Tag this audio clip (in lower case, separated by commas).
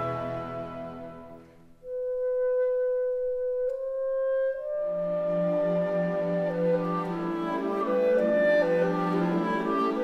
music